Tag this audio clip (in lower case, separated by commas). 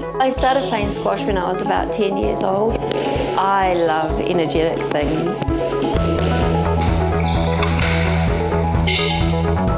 playing squash